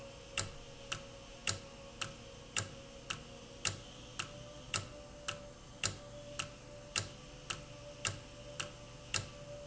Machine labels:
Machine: valve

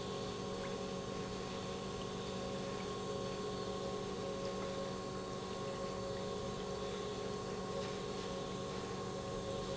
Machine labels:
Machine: pump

